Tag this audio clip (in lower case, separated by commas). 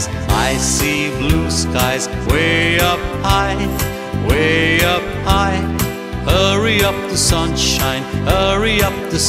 music, music for children